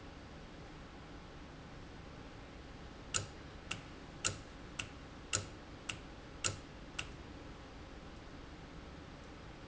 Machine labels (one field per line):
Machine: valve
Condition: normal